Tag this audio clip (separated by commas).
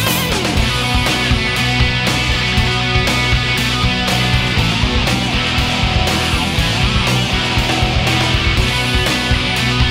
Music